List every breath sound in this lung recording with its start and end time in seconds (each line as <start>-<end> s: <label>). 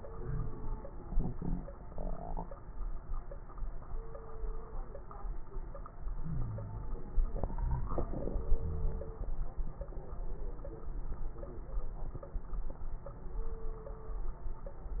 0.00-0.81 s: inhalation
0.15-0.57 s: wheeze
6.19-6.99 s: wheeze
8.58-9.16 s: wheeze